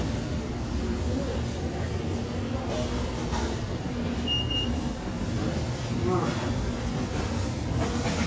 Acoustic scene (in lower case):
subway station